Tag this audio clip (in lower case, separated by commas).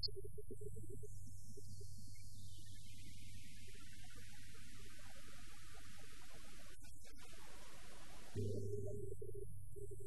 gong